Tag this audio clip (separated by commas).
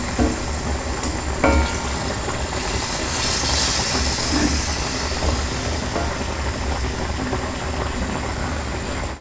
Domestic sounds, dishes, pots and pans, Frying (food)